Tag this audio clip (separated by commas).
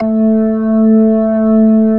Music, Musical instrument, Organ, Keyboard (musical)